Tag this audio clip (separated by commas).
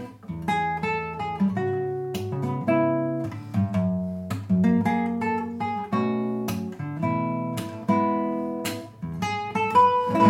Music, Plucked string instrument, Musical instrument, Guitar, Acoustic guitar, Electric guitar